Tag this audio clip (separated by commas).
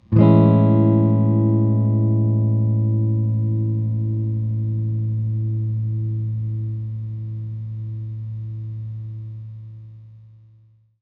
Strum, Plucked string instrument, Musical instrument, Guitar, Electric guitar, Music